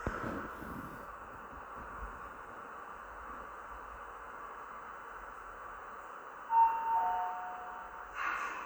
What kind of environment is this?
elevator